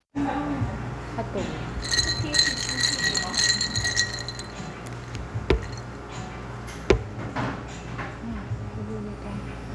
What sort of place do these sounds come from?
cafe